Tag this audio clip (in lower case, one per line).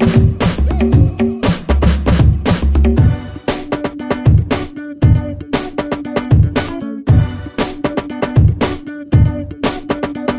disco
music